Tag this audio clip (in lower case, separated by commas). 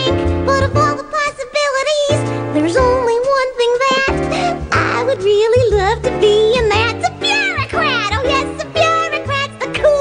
music